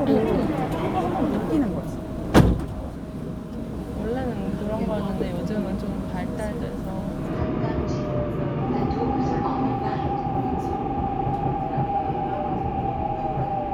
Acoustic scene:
subway train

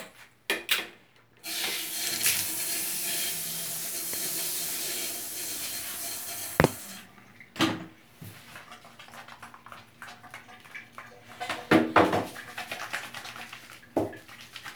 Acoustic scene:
restroom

